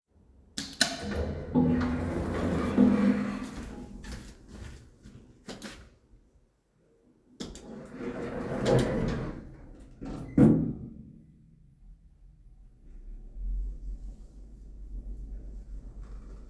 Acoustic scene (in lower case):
elevator